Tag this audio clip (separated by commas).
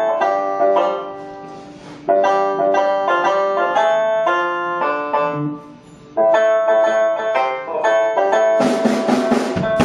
Keyboard (musical), Drum kit, Musical instrument, Music